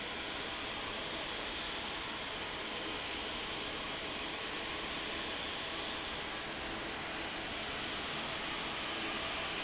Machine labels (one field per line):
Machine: fan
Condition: normal